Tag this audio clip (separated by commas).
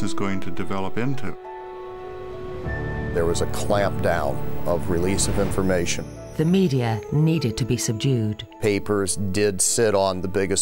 Speech, Music